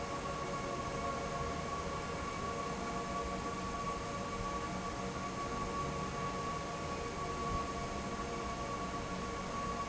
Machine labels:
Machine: fan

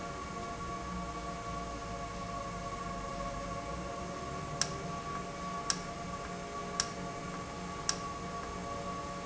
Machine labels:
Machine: valve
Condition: normal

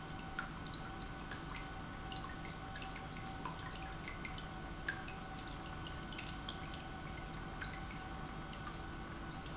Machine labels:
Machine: pump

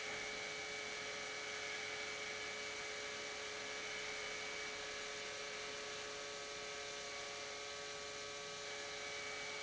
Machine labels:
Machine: pump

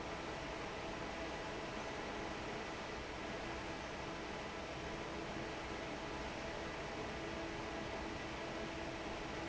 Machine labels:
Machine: fan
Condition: normal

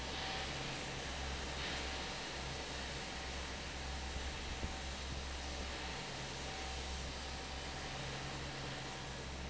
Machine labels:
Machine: fan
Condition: normal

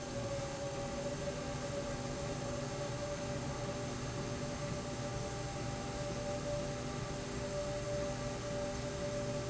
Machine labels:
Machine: slide rail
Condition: normal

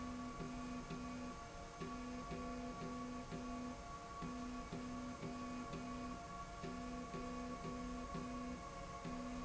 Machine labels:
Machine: slide rail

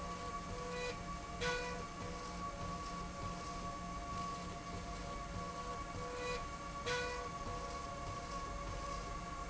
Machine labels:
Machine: slide rail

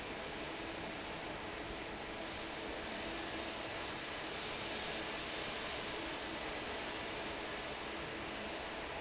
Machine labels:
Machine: fan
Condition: normal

